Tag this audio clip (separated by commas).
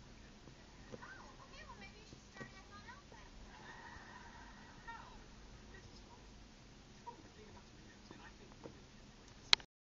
Speech